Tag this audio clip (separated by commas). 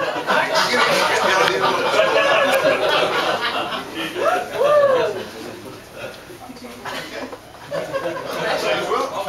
Speech